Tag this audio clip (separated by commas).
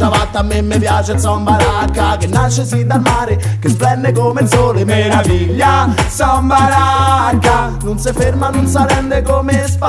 Music